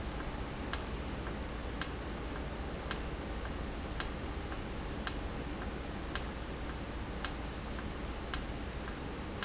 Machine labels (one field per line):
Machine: valve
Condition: normal